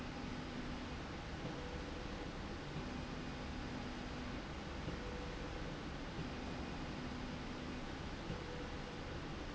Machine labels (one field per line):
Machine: slide rail